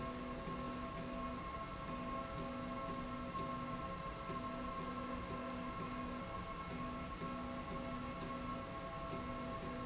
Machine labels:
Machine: slide rail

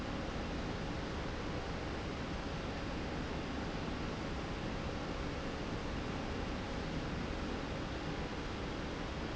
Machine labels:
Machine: slide rail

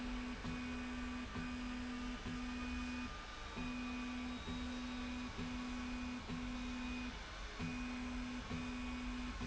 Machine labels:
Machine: slide rail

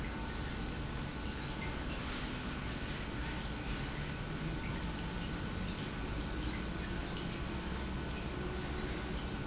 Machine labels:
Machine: pump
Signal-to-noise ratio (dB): -6 dB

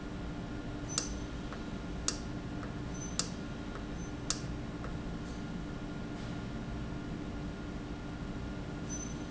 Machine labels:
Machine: valve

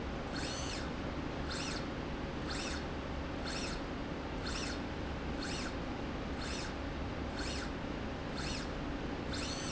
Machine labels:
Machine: slide rail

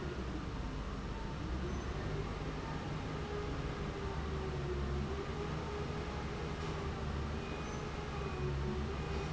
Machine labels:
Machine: fan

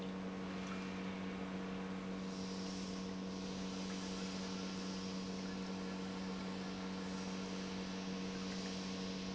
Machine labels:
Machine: pump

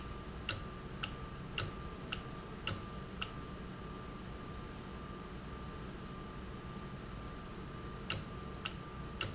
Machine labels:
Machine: valve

